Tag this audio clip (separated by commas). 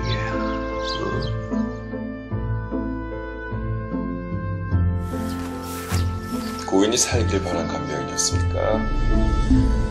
Speech, Music